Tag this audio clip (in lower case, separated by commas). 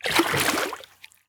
liquid, splash